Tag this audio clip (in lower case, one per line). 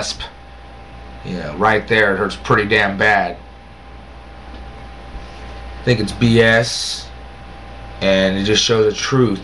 speech
male speech
narration